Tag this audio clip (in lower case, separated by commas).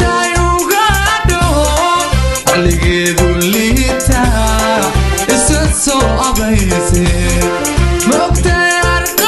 music, music of africa, reggae